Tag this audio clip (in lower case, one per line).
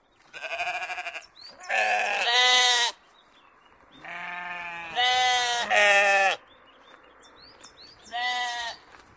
sheep bleating